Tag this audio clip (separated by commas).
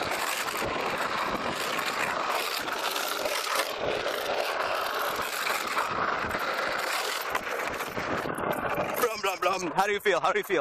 Speech